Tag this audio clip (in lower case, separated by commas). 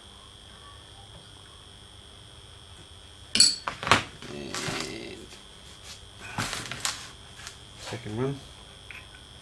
speech